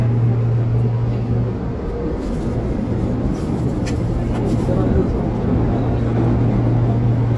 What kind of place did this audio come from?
subway train